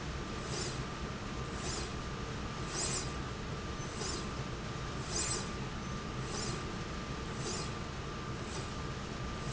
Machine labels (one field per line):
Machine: slide rail